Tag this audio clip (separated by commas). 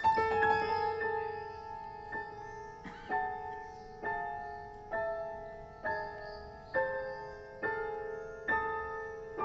Music, Piano, Keyboard (musical), Musical instrument